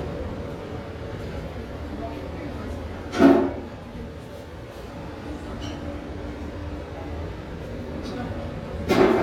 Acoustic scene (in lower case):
restaurant